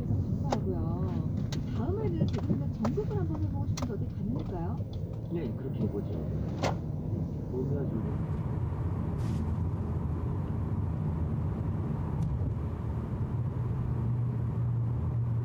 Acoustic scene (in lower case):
car